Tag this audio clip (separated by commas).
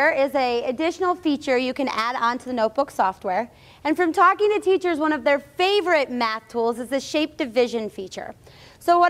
Speech